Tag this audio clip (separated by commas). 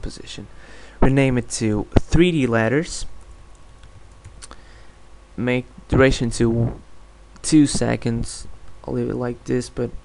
Speech